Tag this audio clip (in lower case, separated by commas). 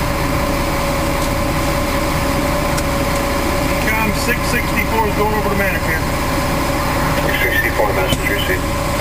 engine, vehicle, speech